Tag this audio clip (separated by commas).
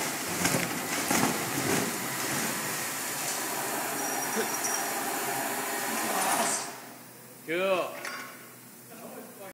Speech